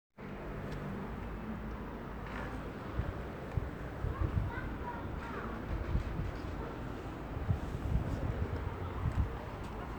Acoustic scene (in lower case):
residential area